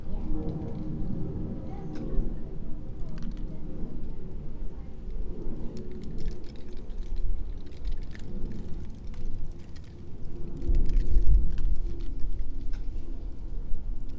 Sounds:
Wind

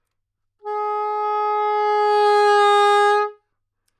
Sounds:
Musical instrument, Music, woodwind instrument

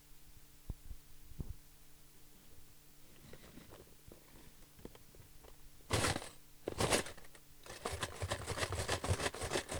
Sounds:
silverware, Domestic sounds

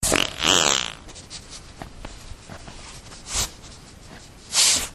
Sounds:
Fart

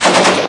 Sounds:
gunfire, Explosion

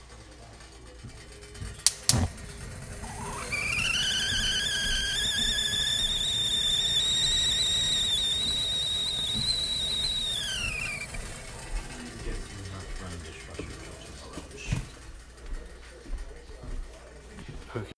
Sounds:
Hiss

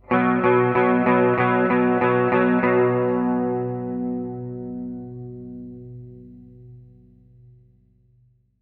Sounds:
Music, Musical instrument, Guitar, Electric guitar, Plucked string instrument

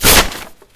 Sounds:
Tearing

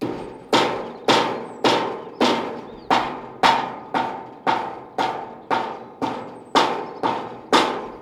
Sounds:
Tools

